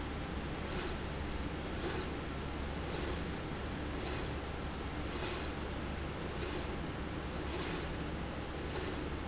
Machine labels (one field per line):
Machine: slide rail